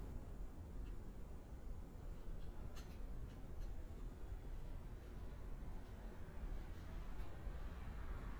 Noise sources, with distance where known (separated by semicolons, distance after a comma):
background noise